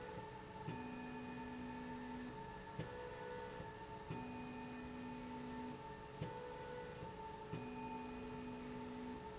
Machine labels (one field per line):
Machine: slide rail